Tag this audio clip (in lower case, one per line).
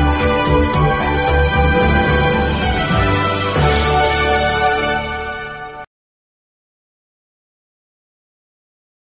television
music